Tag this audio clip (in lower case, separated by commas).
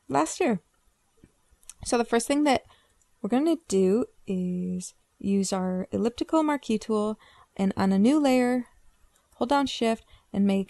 speech